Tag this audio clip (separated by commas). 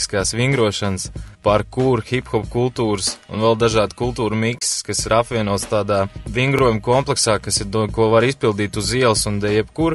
Speech, Music